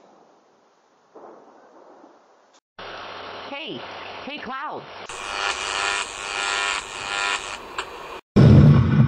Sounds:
thunder

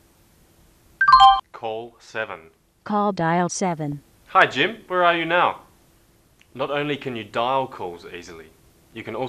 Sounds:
speech

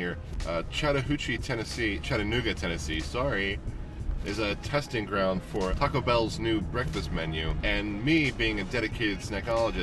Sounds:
music
speech

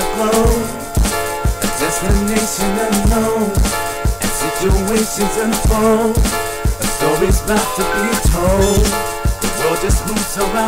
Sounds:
music
rhythm and blues

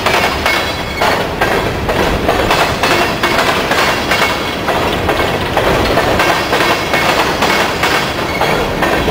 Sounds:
railroad car
clickety-clack
train
rail transport

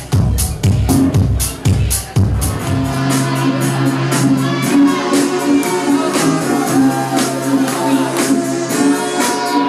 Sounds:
rhythm and blues
disco
music

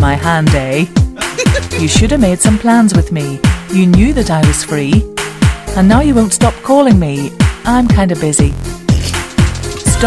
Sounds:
speech
music

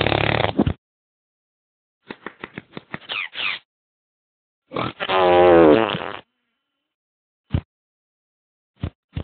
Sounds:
fart

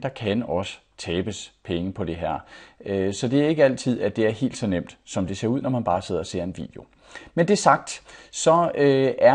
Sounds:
speech

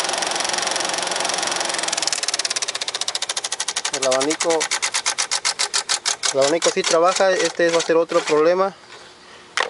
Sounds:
speech
motor vehicle (road)
vehicle
engine

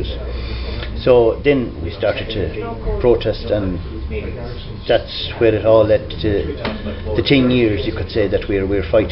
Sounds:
speech
inside a small room

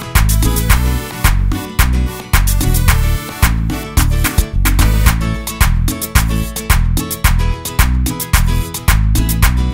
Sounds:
guitar
music
musical instrument
plucked string instrument

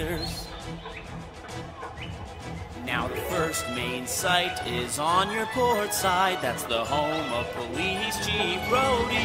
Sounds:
music

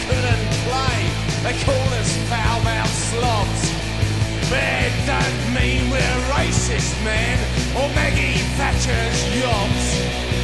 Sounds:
music
rock and roll

